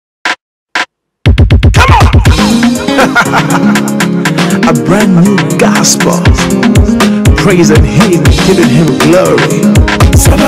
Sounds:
music, drum machine, speech

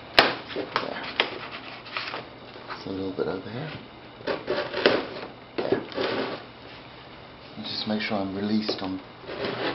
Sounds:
rub, wood

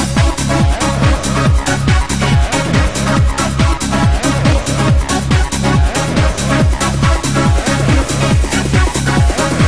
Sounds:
music

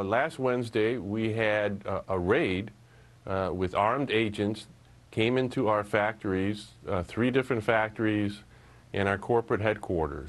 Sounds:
speech

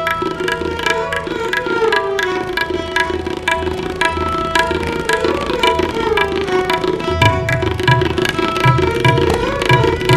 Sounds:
percussion, tabla, music, classical music, carnatic music, musical instrument, bowed string instrument, music of asia, fiddle

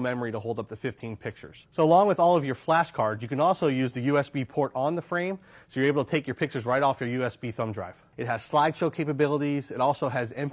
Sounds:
speech

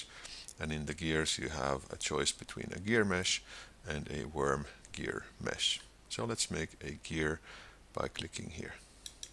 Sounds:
speech

